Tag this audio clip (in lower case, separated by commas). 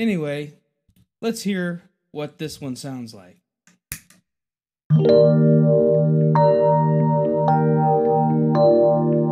keyboard (musical), speech, music, musical instrument, synthesizer